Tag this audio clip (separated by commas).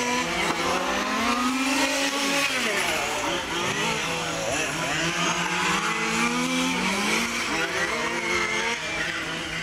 Car, Vehicle